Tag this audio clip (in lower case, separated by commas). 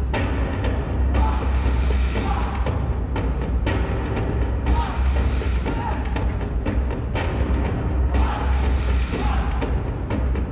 timpani